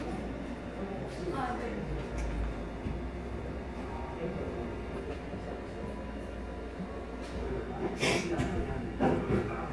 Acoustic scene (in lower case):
cafe